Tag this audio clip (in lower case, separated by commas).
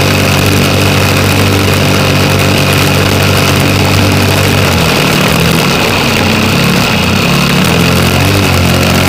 engine, vehicle